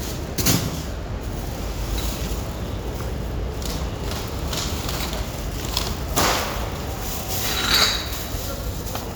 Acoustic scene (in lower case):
residential area